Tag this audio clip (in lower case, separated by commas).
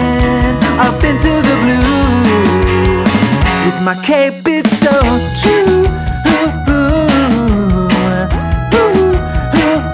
music